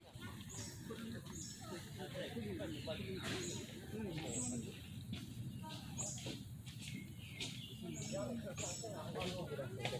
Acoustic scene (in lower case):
park